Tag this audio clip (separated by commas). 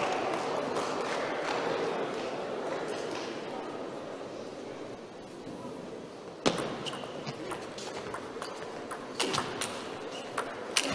playing table tennis